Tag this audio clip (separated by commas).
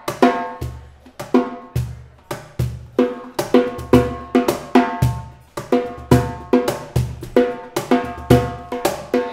Funk, Drum, Drum kit, Musical instrument, Song, Hi-hat, Snare drum, Music, Drum roll, Wood block, Percussion